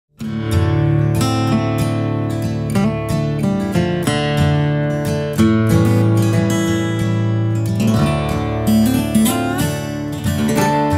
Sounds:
Music, Acoustic guitar

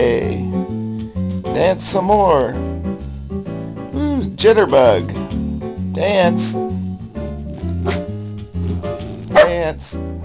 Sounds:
Dog, canids, inside a small room, Animal, Domestic animals, Speech, Music

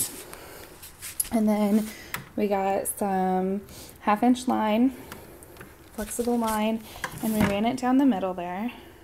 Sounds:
Speech

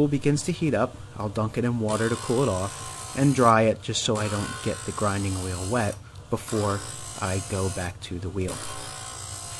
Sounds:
Tools, Speech

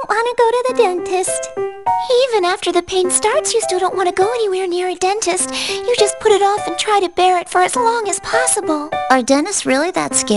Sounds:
Speech, Music

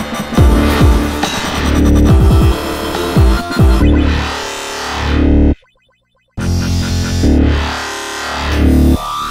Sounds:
Music

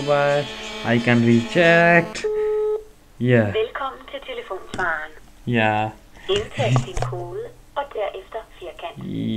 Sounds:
Telephone, Music, Speech

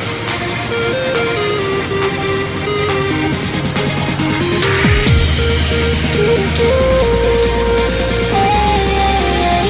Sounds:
Music

